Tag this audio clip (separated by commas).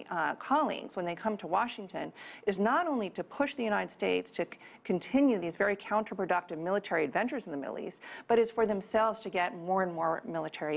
Speech